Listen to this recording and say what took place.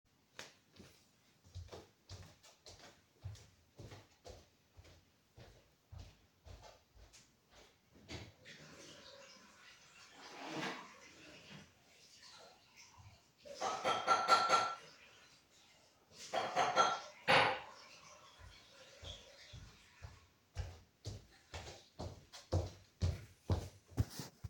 I go into the kitchen and wash my coffe mug into the water. Then I also tap against the coffee mug, making distinct coffee mug sounds.